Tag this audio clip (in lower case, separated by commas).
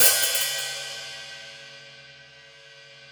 percussion, hi-hat, musical instrument, cymbal, music